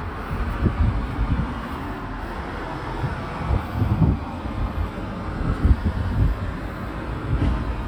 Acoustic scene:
residential area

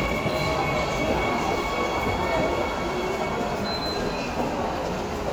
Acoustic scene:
subway station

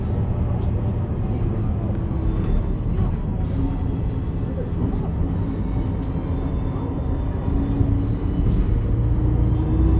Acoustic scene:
bus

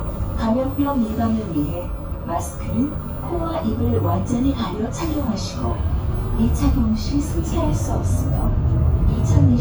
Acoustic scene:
bus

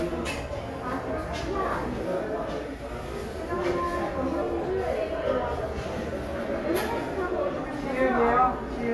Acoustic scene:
crowded indoor space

